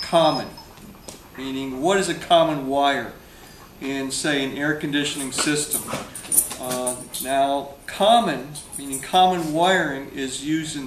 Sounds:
Speech, inside a small room

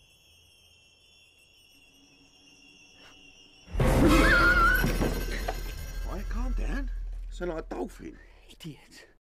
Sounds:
Music, Speech, Groan

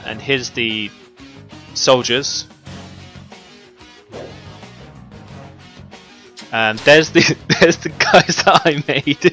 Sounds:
Music, Speech

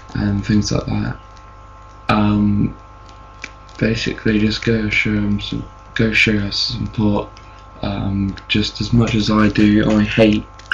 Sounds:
Speech

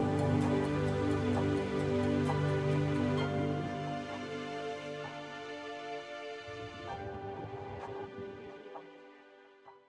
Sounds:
Music

